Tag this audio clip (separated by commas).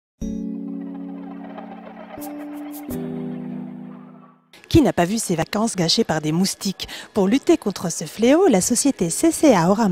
mosquito buzzing